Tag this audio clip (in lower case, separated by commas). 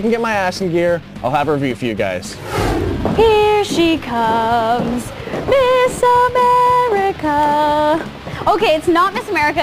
music, speech